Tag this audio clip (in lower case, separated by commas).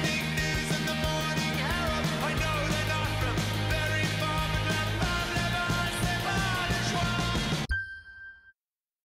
rhythm and blues, pop music, middle eastern music, music